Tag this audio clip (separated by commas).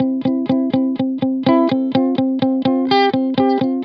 Electric guitar, Guitar, Plucked string instrument, Music, Musical instrument